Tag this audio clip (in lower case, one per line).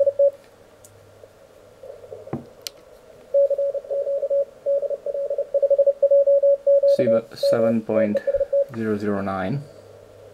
radio
speech